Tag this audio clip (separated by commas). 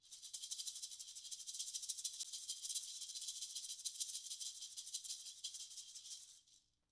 Musical instrument, Percussion, Music, Rattle (instrument)